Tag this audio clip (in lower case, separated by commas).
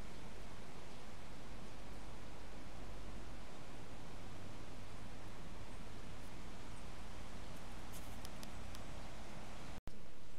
fox barking